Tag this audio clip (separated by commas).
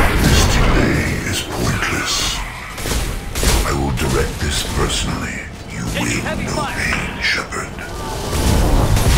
Speech